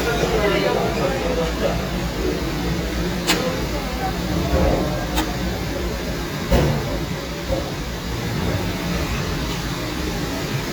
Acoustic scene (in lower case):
cafe